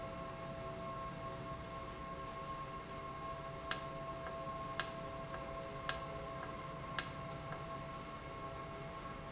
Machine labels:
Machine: valve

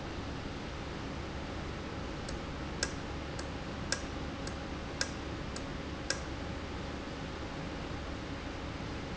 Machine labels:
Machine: valve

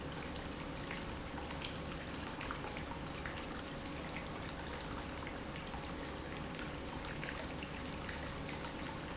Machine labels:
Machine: pump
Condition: normal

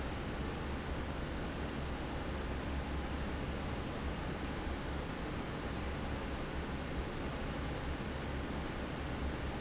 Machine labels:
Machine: fan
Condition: normal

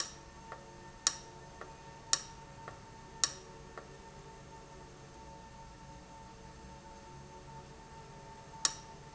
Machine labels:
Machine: valve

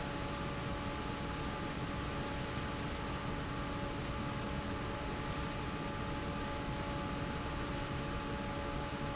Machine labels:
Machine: fan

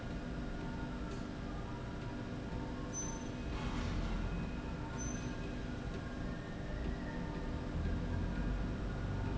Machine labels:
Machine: slide rail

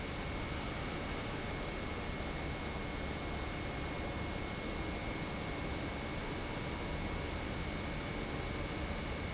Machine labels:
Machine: pump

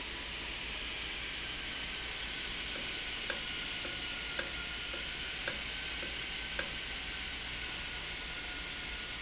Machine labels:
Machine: valve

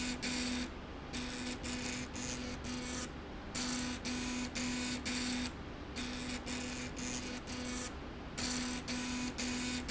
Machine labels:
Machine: slide rail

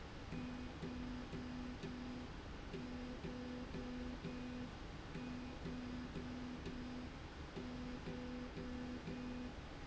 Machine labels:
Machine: slide rail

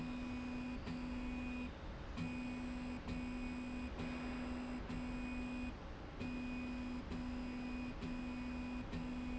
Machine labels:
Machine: slide rail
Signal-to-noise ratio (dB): 6 dB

